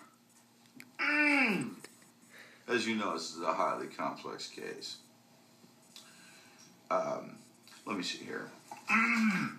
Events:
0.0s-9.5s: television
0.3s-0.4s: tick
0.6s-0.8s: tick
0.9s-1.8s: throat clearing
1.8s-2.0s: tick
2.2s-2.7s: breathing
2.6s-8.6s: conversation
2.7s-5.0s: man speaking
5.9s-6.0s: tick
5.9s-6.7s: breathing
6.9s-7.4s: man speaking
7.7s-8.5s: man speaking
8.7s-8.8s: tick
8.8s-9.5s: throat clearing

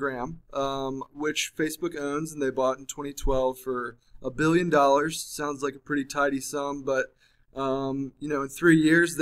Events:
0.0s-0.4s: man speaking
0.0s-9.2s: background noise
0.5s-3.9s: man speaking
4.0s-4.2s: breathing
4.2s-7.1s: man speaking
7.2s-7.4s: breathing
7.5s-8.1s: man speaking
8.2s-9.2s: man speaking

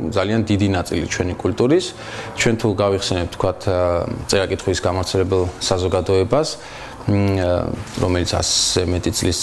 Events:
0.0s-1.9s: man speaking
0.0s-9.4s: mechanisms
1.9s-2.3s: breathing
2.4s-3.5s: man speaking
3.6s-4.2s: man speaking
4.3s-5.5s: man speaking
5.6s-6.6s: man speaking
5.8s-6.0s: brief tone
6.6s-7.0s: breathing
7.0s-7.8s: man speaking
7.9s-8.0s: generic impact sounds
8.0s-9.4s: man speaking

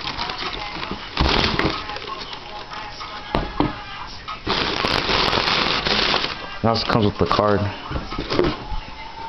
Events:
0.0s-0.9s: crumpling
0.0s-1.0s: male singing
0.0s-9.2s: music
0.8s-0.8s: generic impact sounds
0.9s-0.9s: tap
1.1s-2.8s: crumpling
1.7s-4.4s: male singing
3.3s-3.4s: thump
3.6s-3.7s: thump
4.2s-4.3s: generic impact sounds
4.4s-6.3s: crumpling
6.6s-9.2s: male singing
6.6s-7.7s: male speech
6.8s-6.9s: generic impact sounds
7.2s-7.3s: generic impact sounds
7.9s-8.8s: generic impact sounds

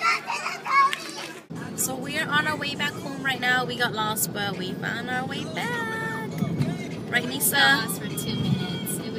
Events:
0.0s-1.2s: kid speaking
0.0s-1.5s: mechanisms
0.8s-0.9s: tick
1.1s-1.3s: generic impact sounds
1.5s-9.1s: car
1.5s-9.1s: music
1.7s-6.4s: woman speaking
1.7s-9.1s: conversation
6.3s-6.4s: tick
6.5s-6.6s: tick
7.1s-9.1s: woman speaking

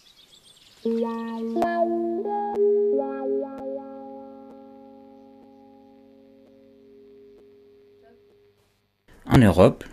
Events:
0.0s-0.8s: wind
0.0s-1.6s: tweet
0.8s-8.8s: music
1.5s-1.6s: generic impact sounds
2.0s-9.0s: hum
2.5s-2.6s: tick
3.6s-3.6s: tick
4.5s-4.5s: tick
5.4s-5.4s: tick
6.4s-6.5s: tick
7.3s-7.4s: tick
8.0s-8.2s: human voice
8.3s-8.3s: tick
8.6s-8.8s: surface contact
8.6s-9.9s: background noise
9.3s-9.9s: male speech

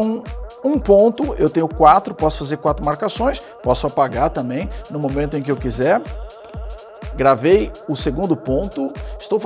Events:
0.0s-0.2s: male speech
0.0s-9.4s: music
0.5s-3.4s: male speech
3.4s-3.6s: breathing
3.6s-4.7s: male speech
4.7s-4.8s: breathing
4.8s-6.0s: male speech
7.2s-8.9s: male speech
8.9s-9.2s: breathing

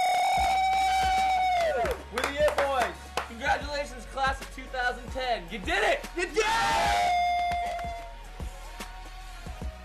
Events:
0.0s-1.9s: cheering
0.0s-9.8s: music
0.6s-0.6s: tick
1.5s-1.7s: clapping
1.8s-1.9s: clapping
2.1s-2.9s: male speech
2.1s-2.2s: clapping
2.4s-2.6s: clapping
2.7s-2.8s: clapping
2.9s-5.5s: male singing
3.1s-3.2s: clapping
3.2s-6.0s: male speech
5.6s-6.3s: male singing
6.1s-6.5s: male speech
6.4s-8.1s: cheering
7.5s-7.6s: clapping
7.7s-7.8s: clapping
7.8s-9.8s: male singing

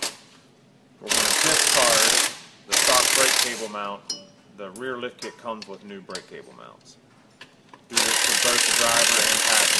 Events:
0.9s-2.3s: drill
1.3s-2.3s: man speaking
2.6s-3.7s: drill
2.7s-3.9s: man speaking
3.9s-4.3s: generic impact sounds
4.4s-6.7s: man speaking
4.5s-6.8s: generic impact sounds
7.2s-7.6s: generic impact sounds
7.8s-9.7s: drill
8.3s-9.7s: man speaking

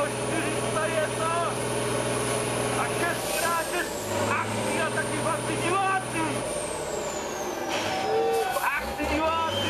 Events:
0.0s-0.5s: male speech
0.0s-9.6s: truck
0.7s-1.5s: male speech
2.7s-3.1s: male speech
3.3s-3.9s: male speech
4.1s-4.4s: male speech
4.7s-6.4s: male speech
7.9s-8.6s: shout
8.5s-9.6s: male speech
9.5s-9.6s: whistling

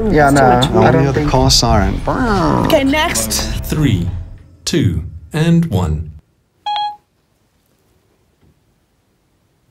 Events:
0.0s-2.7s: male speech
0.0s-5.3s: music
0.0s-6.2s: conversation
0.0s-9.7s: mechanisms
2.6s-3.6s: female speech
3.6s-4.3s: male speech
4.6s-5.1s: male speech
5.3s-6.1s: male speech
6.6s-7.0s: sound effect

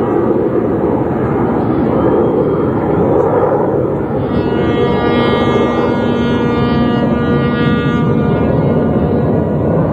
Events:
0.0s-9.9s: background noise
4.2s-8.7s: honking

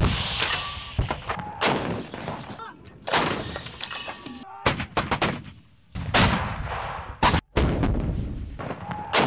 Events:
0.0s-0.4s: artillery fire
0.0s-9.2s: background noise
0.4s-0.8s: generic impact sounds
1.0s-1.1s: generic impact sounds
1.2s-1.4s: generic impact sounds
1.3s-1.7s: man speaking
1.6s-2.1s: artillery fire
2.1s-2.3s: generic impact sounds
2.5s-3.0s: female speech
2.8s-2.9s: generic impact sounds
3.0s-3.4s: artillery fire
3.5s-4.3s: generic impact sounds
4.4s-4.8s: man speaking
4.6s-5.4s: artillery fire
6.1s-6.5s: artillery fire
7.5s-8.3s: artillery fire
8.5s-8.9s: generic impact sounds
8.8s-9.1s: man speaking

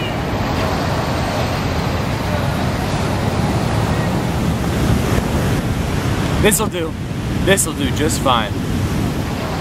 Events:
0.0s-9.6s: surf
0.0s-9.6s: wind
6.4s-7.0s: man speaking
7.4s-8.5s: man speaking

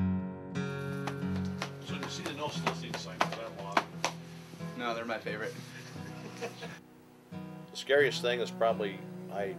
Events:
0.0s-9.5s: music
1.0s-1.6s: clapping
1.8s-3.8s: male speech
1.8s-5.5s: conversation
1.8s-5.6s: conversation
1.9s-2.3s: clapping
2.6s-3.0s: clapping
3.2s-3.4s: clapping
3.7s-4.1s: clapping
4.7s-5.6s: male speech
5.6s-6.1s: human sounds
6.3s-6.4s: tick
6.3s-6.8s: laughter
7.7s-8.5s: male speech
8.0s-9.5s: male singing
8.6s-9.0s: male speech
9.3s-9.5s: male speech

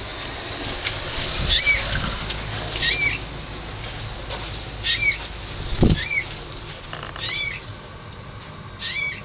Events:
0.0s-9.2s: mechanisms
0.0s-9.2s: wind
0.2s-0.2s: generic impact sounds
0.6s-0.7s: generic impact sounds
0.8s-0.9s: generic impact sounds
1.3s-2.2s: wind noise (microphone)
1.4s-1.8s: bird vocalization
1.9s-2.0s: generic impact sounds
1.9s-2.1s: speech
2.2s-2.3s: generic impact sounds
2.4s-2.5s: generic impact sounds
2.5s-2.7s: speech
2.7s-3.2s: bird vocalization
3.7s-3.9s: generic impact sounds
4.3s-4.5s: generic impact sounds
4.8s-5.2s: bird vocalization
5.1s-5.3s: generic impact sounds
5.5s-5.9s: flapping wings
5.7s-6.0s: wind noise (microphone)
5.9s-6.2s: bird vocalization
6.5s-6.7s: generic impact sounds
6.9s-7.3s: generic impact sounds
7.2s-7.6s: bird vocalization
7.6s-7.7s: generic impact sounds
8.1s-8.2s: generic impact sounds
8.4s-8.4s: generic impact sounds
8.8s-9.2s: bird vocalization

